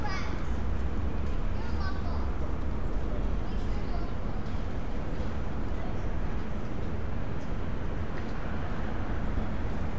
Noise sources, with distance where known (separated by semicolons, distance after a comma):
person or small group talking, near